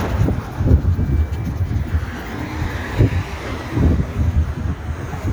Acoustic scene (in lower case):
street